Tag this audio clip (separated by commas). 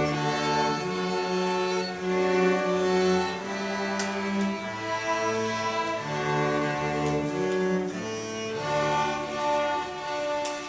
Orchestra, Music